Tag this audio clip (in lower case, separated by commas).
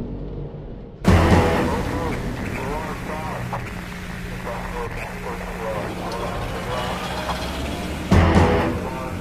music, speech